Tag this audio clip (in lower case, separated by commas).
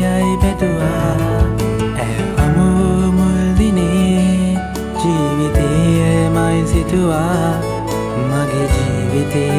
music